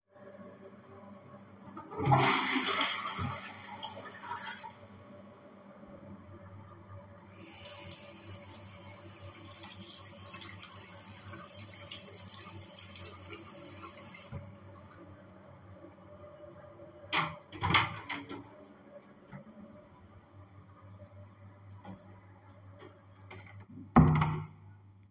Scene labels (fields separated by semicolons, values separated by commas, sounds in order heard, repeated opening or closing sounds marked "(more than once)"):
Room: lavatory; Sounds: toilet flushing, running water, door